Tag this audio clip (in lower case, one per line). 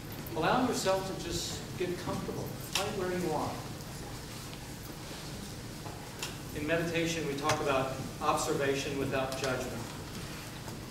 speech